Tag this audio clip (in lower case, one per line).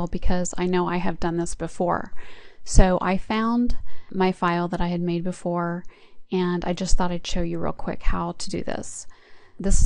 speech